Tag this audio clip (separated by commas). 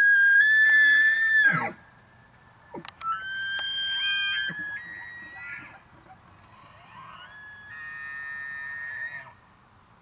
elk bugling